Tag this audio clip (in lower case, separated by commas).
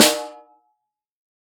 drum, snare drum, music, percussion, musical instrument